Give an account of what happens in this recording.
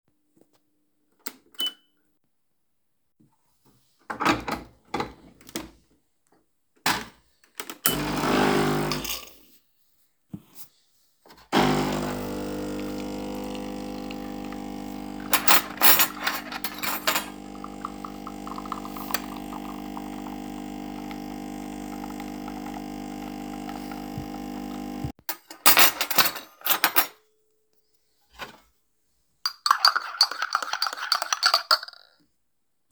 turned on the coffee machine, and inserted the capsule.opened the cutlery drawer and pressed the start button. grabbed the spoona dn stirred the coffee